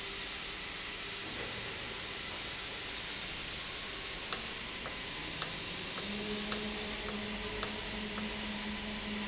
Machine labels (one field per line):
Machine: valve